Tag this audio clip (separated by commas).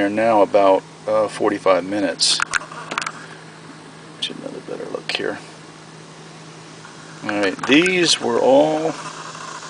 Speech